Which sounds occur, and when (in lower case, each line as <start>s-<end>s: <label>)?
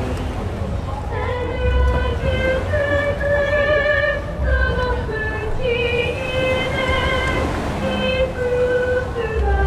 0.0s-9.6s: water
0.0s-9.6s: wind
0.1s-0.2s: tick
0.9s-9.6s: choir
4.8s-4.8s: tick
7.2s-7.3s: tick